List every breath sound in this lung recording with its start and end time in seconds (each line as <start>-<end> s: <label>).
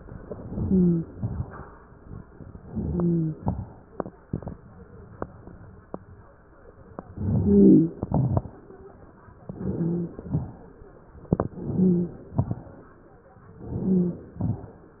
0.32-1.10 s: inhalation
0.57-1.10 s: wheeze
1.10-1.57 s: exhalation
2.60-3.40 s: inhalation
2.83-3.36 s: wheeze
7.12-7.95 s: inhalation
7.12-7.95 s: wheeze
8.03-8.50 s: exhalation
8.03-8.50 s: crackles
9.45-10.23 s: inhalation
9.45-10.23 s: wheeze
10.29-10.66 s: exhalation
11.54-12.31 s: inhalation
11.54-12.31 s: wheeze
12.33-12.71 s: exhalation
13.62-14.40 s: inhalation
13.62-14.40 s: wheeze
14.42-14.80 s: exhalation